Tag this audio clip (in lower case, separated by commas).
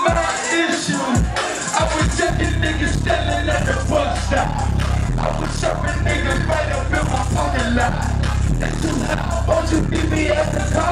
music, pop music